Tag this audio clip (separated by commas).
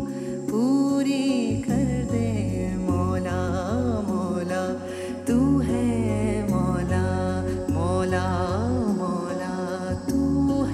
Music, Singing